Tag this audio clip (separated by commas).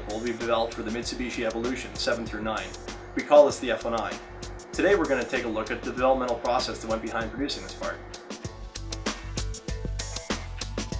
Speech, Music